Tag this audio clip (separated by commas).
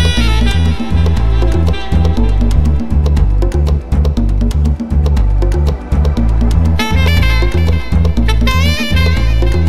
Music, Salsa music